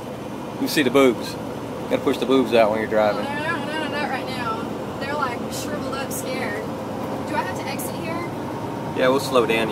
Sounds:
Vehicle, Speech

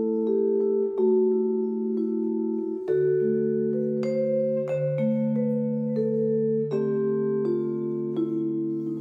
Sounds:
Music, Musical instrument

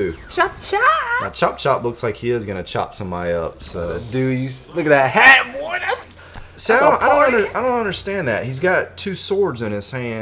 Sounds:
Speech

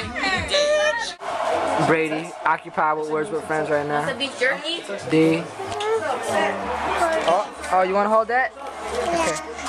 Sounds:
Speech

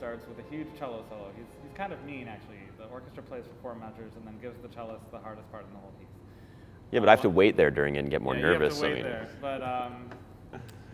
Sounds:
Speech

